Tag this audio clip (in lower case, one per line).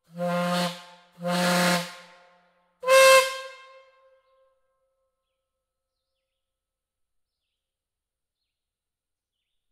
steam whistle